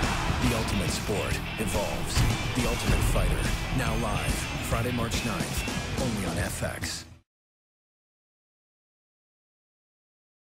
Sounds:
Speech, Music

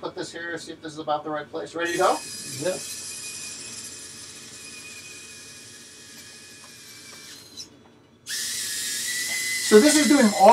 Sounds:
inside a small room, Speech

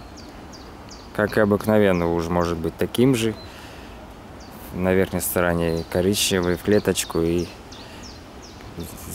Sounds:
Animal, Speech, outside, rural or natural

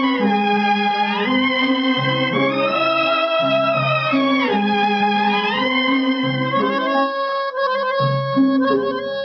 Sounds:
woodwind instrument

